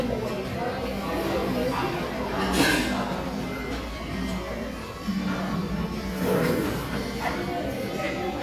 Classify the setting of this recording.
crowded indoor space